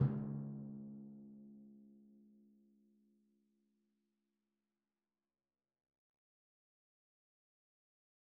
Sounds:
Percussion, Musical instrument, Drum, Music

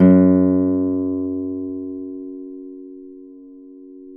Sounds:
Music, Plucked string instrument, Acoustic guitar, Guitar, Musical instrument

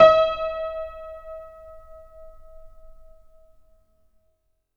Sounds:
Keyboard (musical), Piano, Music, Musical instrument

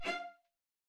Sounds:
Bowed string instrument, Musical instrument, Music

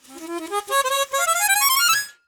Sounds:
Music, Harmonica, Musical instrument

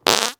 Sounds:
Fart

